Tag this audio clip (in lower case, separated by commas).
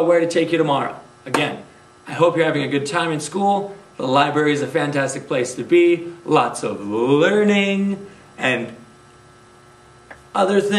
inside a small room, speech